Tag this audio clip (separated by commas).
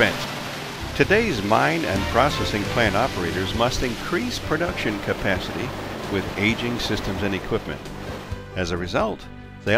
Speech, Music